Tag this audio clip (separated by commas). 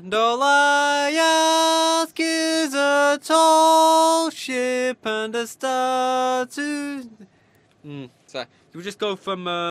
Speech